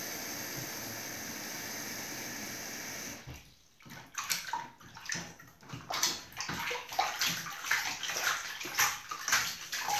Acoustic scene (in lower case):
restroom